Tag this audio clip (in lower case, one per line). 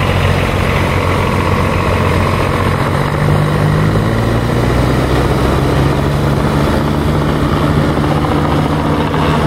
tractor digging